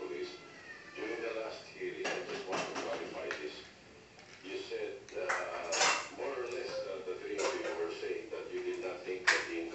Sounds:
Speech, Animal

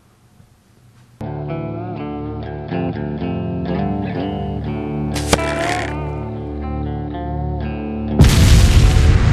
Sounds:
Music, Boom

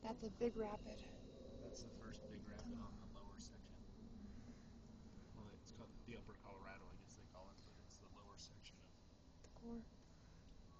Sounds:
Speech

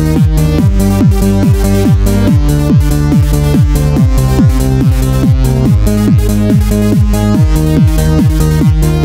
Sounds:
Music, Exciting music

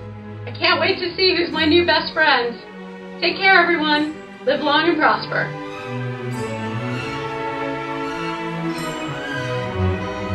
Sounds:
Music, Speech

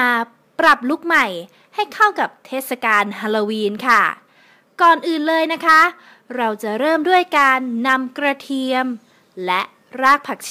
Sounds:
Speech

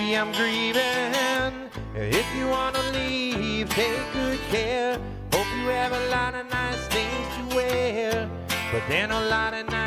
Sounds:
Music

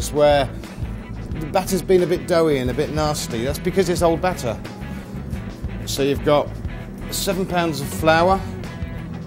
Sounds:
Speech, Music

